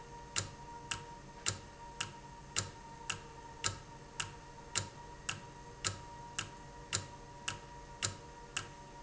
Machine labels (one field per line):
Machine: valve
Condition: normal